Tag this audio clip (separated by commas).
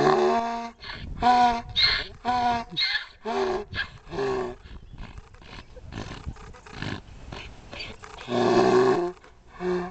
donkey